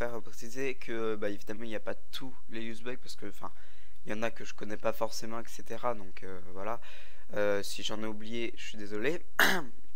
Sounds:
Speech

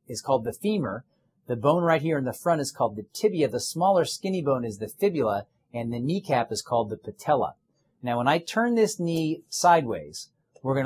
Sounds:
Speech

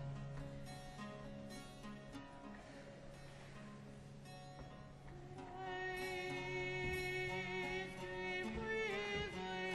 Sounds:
Music

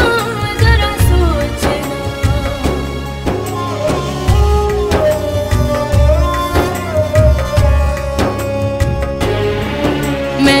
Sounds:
Music

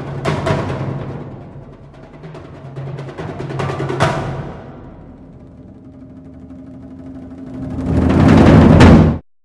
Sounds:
Music, Drum, Musical instrument, Percussion, Timpani

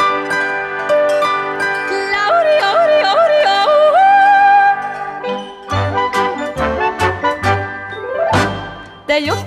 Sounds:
yodelling

